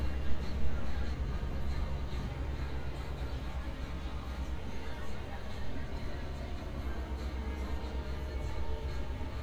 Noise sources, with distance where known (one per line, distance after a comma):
music from an unclear source
person or small group talking